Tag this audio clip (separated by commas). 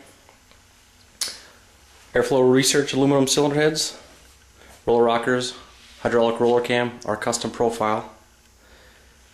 Speech